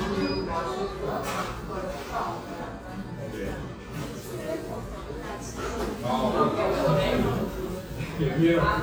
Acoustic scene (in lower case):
cafe